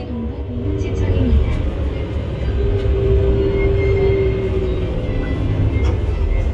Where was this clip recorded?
on a bus